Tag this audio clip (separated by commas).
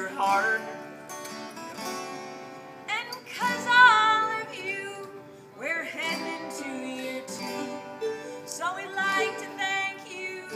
Singing, Music